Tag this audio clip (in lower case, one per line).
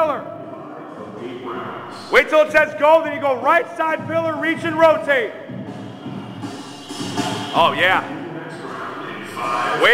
speech
music